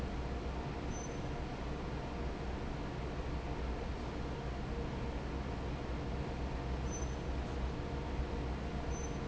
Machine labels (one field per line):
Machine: fan